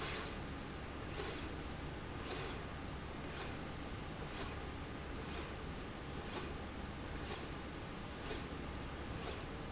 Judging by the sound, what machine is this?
slide rail